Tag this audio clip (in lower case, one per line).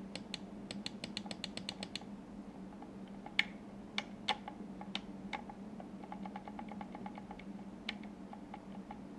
mouse clicking